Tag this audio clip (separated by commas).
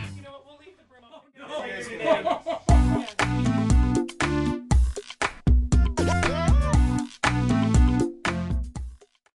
Music, Speech